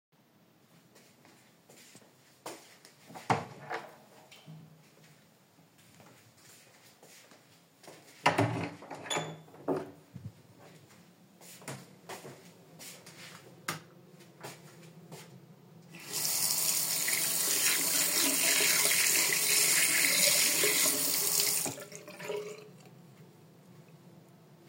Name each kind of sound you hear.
door, footsteps, light switch, running water